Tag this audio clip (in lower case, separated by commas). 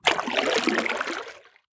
liquid, splatter